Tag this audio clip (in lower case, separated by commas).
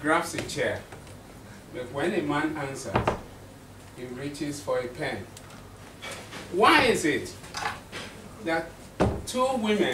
male speech, speech